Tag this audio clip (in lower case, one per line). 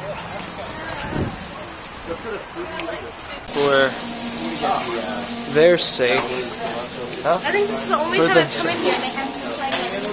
speech